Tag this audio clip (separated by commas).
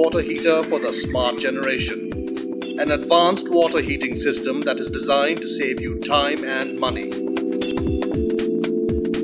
Music, Speech